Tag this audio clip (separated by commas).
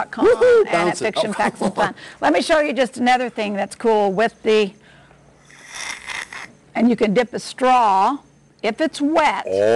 Speech